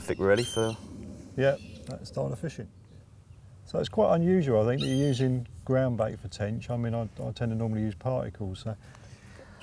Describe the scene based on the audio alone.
People talk, a bird squawks